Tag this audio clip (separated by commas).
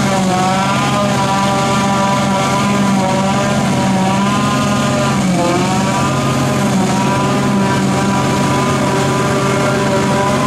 Vehicle, outside, rural or natural